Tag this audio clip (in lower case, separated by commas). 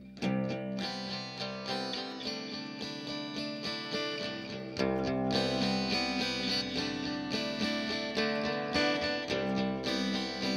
music, guitar